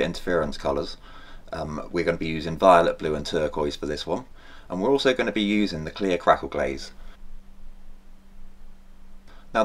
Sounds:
speech

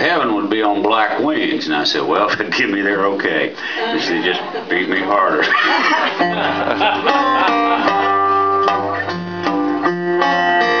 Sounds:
music, speech

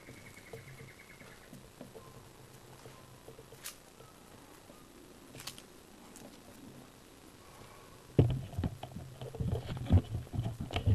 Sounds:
animal

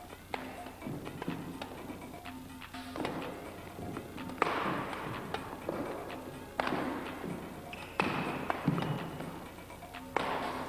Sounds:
playing badminton

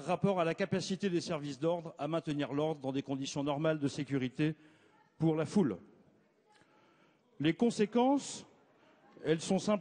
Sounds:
speech

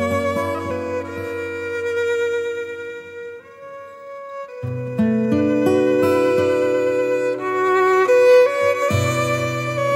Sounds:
fiddle, music

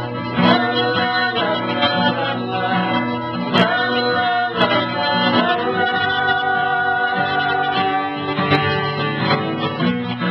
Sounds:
guitar, musical instrument, singing, country, lullaby, music

